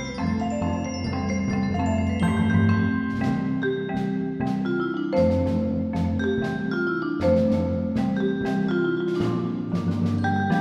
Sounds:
Percussion, Music

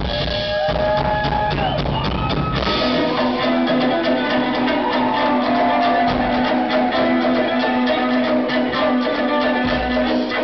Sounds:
Music

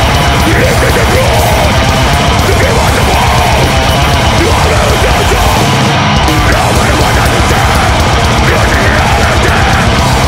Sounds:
Music

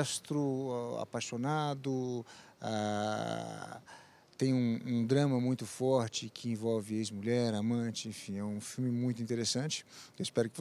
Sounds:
Speech

